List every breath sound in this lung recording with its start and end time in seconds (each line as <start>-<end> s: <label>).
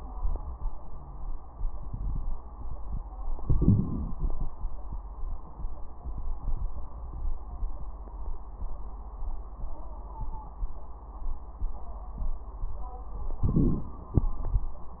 3.41-4.48 s: inhalation
3.41-4.48 s: crackles
13.44-14.24 s: inhalation
13.44-14.24 s: crackles